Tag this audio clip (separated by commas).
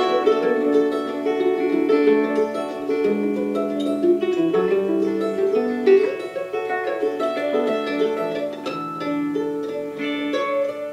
Ukulele, Music